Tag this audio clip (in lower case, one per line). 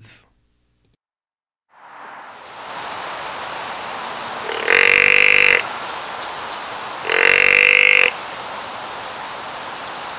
animal